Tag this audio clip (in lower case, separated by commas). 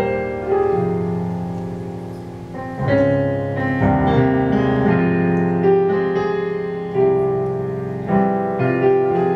music